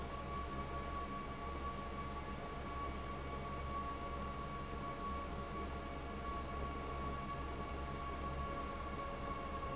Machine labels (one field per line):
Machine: fan